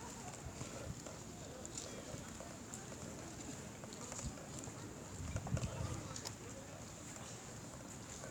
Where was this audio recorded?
in a park